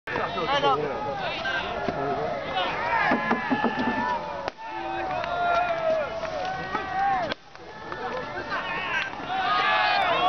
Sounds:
Speech

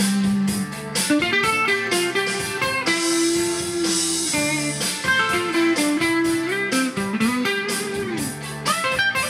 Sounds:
Blues, Music, Musical instrument, Guitar, Plucked string instrument, Tapping (guitar technique), Electric guitar

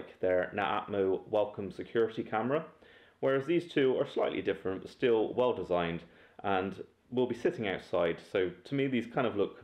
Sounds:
Speech

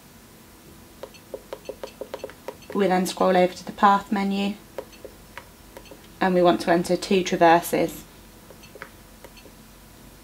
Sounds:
Speech, inside a small room

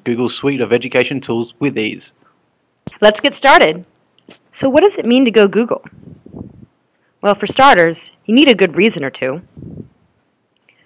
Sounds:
Speech

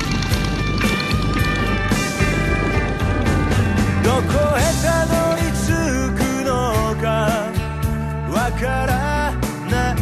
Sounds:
Music

